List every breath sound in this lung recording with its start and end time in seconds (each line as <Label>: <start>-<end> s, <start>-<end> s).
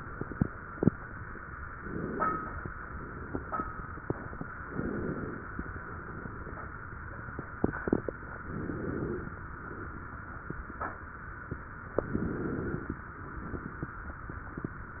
Inhalation: 1.84-2.62 s, 4.72-5.50 s, 8.50-9.39 s, 12.05-12.94 s